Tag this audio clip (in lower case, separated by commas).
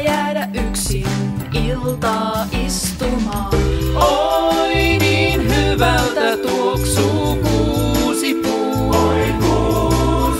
music